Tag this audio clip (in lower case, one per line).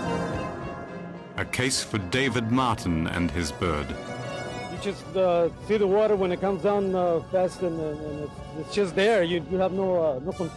music
speech